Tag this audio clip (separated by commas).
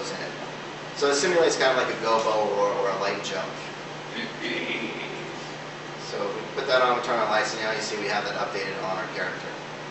Speech